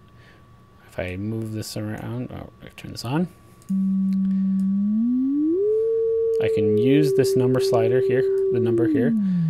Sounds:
Speech

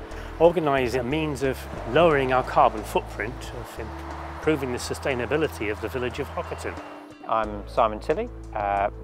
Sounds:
Speech, Music

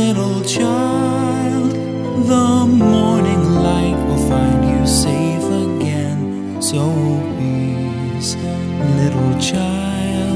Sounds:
Christmas music

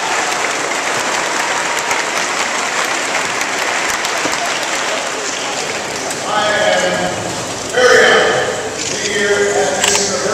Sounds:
Speech, man speaking

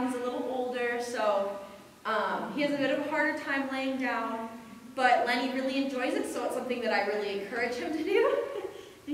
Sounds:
Speech

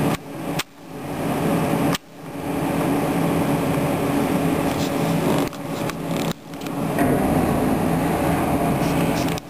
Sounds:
Wind

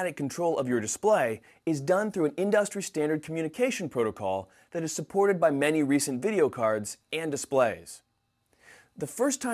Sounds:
Speech

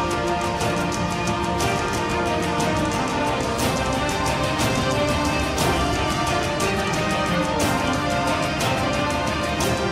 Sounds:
Music

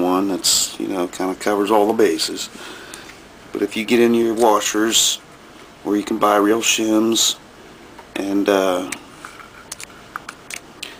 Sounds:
Speech

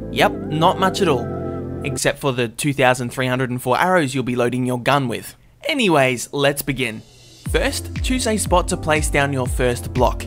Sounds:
Music, Speech

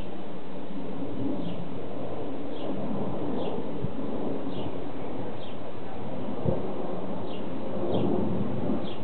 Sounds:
Bird, Animal

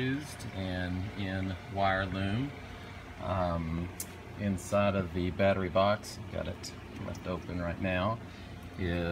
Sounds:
Speech

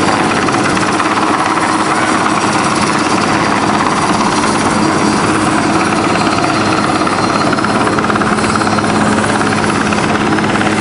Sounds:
Helicopter, Vehicle

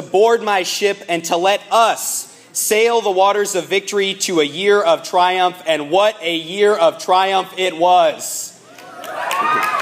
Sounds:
Narration, Speech, man speaking

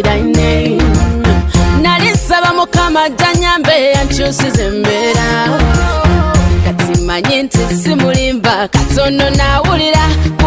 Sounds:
Music

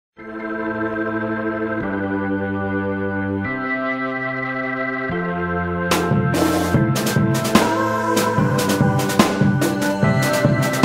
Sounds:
Music

